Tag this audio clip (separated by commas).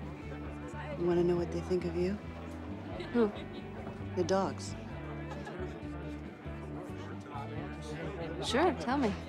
Speech, Music